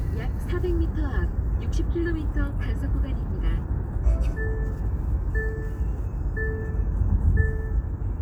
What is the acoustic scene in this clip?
car